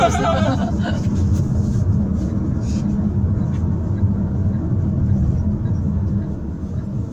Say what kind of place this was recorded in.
car